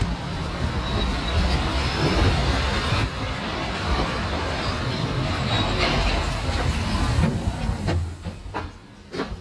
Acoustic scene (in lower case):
street